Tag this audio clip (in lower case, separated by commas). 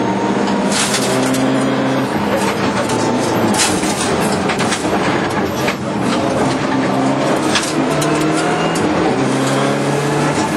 vehicle, car